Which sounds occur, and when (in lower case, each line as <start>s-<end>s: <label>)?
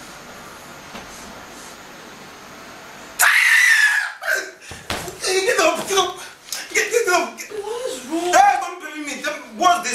0.0s-9.9s: mechanisms
0.9s-1.0s: generic impact sounds
3.2s-4.5s: shout
4.6s-5.2s: slap
5.2s-6.4s: male speech
5.2s-9.9s: conversation
6.1s-6.3s: breathing
6.5s-7.6s: male speech
7.5s-8.4s: female speech
8.3s-9.9s: male speech